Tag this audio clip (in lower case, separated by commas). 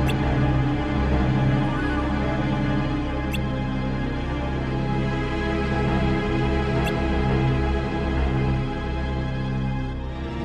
music